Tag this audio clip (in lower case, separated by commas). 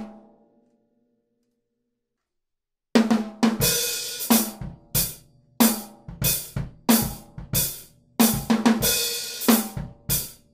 music, musical instrument, drum, drum kit